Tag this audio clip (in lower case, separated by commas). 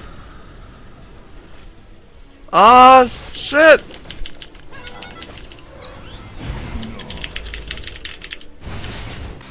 music, speech